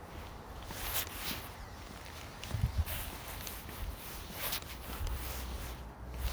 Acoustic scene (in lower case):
residential area